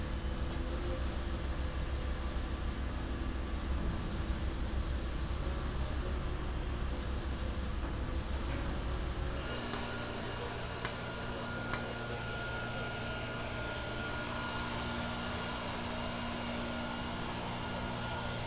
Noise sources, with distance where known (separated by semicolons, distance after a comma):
unidentified impact machinery